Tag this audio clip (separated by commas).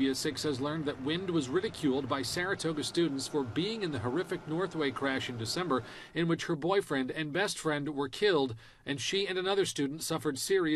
Speech